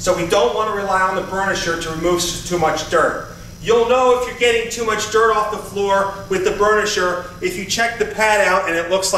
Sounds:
speech

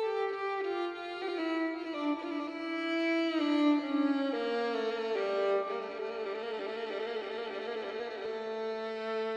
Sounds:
fiddle
musical instrument
music

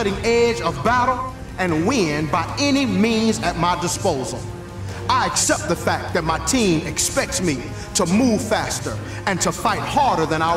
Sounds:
speech
music

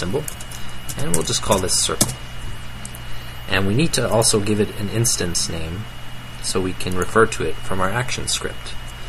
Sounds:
speech

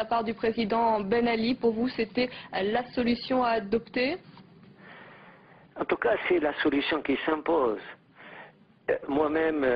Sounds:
speech

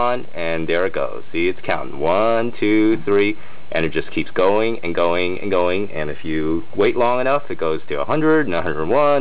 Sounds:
speech

